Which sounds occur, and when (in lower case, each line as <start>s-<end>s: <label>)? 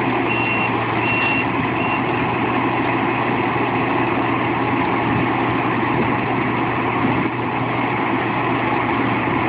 0.0s-9.4s: heavy engine (low frequency)
0.2s-0.6s: reversing beeps
0.9s-1.4s: reversing beeps
1.6s-2.0s: reversing beeps